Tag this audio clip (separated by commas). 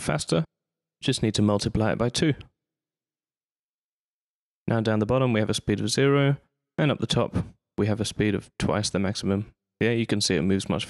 Speech